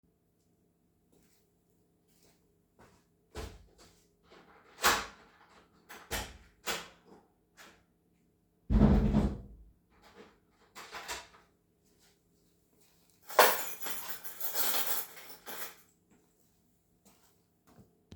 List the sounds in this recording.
door, keys